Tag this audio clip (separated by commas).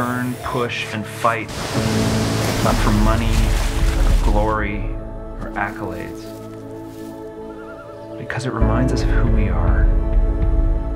Music, Boat, Speech, Vehicle, canoe